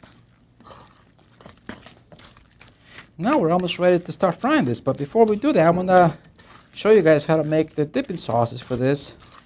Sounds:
Speech, inside a small room

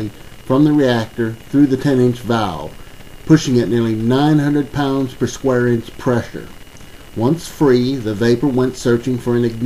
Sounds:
Speech

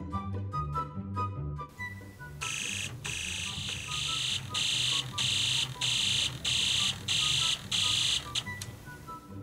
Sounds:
Music

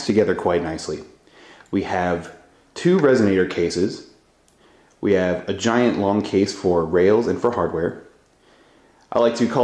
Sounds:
Speech

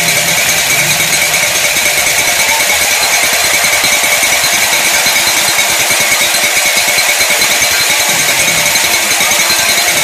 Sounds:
Speech, outside, rural or natural, Music

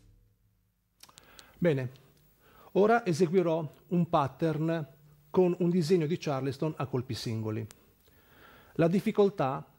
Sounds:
Speech

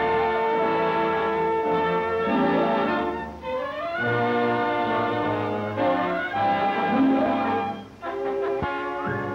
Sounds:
Music

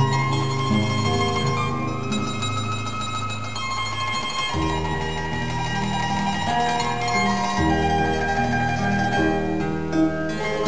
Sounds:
Plucked string instrument, Musical instrument, Music, Classical music, Harp, Zither

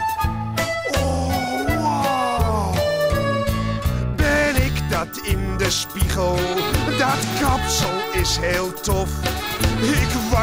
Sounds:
Music

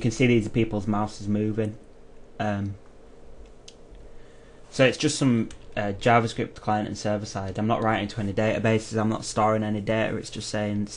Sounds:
Speech

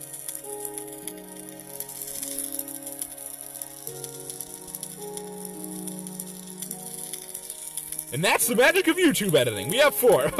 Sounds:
Speech, Music

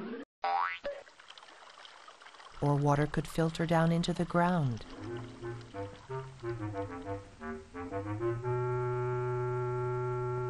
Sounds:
Speech, Music, Water

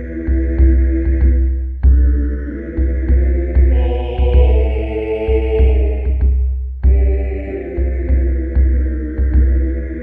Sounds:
Music

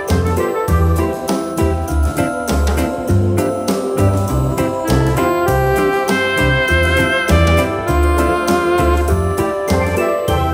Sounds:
Music

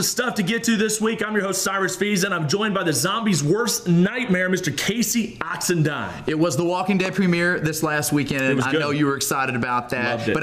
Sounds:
Speech

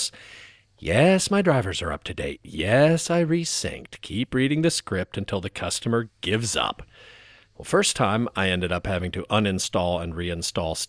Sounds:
Speech

